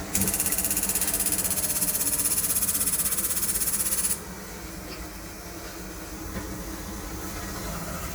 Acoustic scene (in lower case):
kitchen